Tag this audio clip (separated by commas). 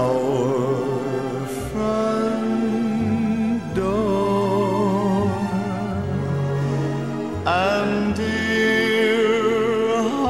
Vocal music, Music